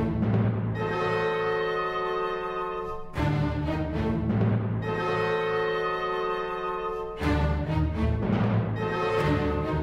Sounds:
playing timpani

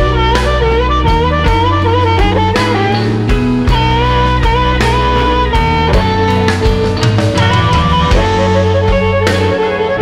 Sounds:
plucked string instrument
music
guitar
musical instrument

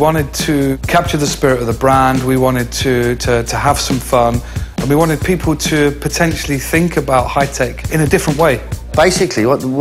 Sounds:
speech
music

